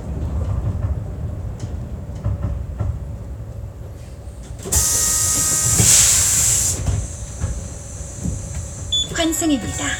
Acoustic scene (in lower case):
bus